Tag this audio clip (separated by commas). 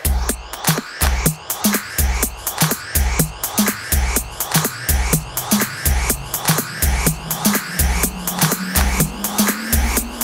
Music